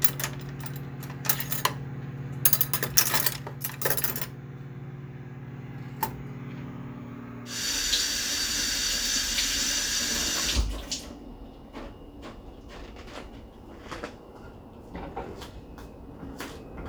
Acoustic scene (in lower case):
kitchen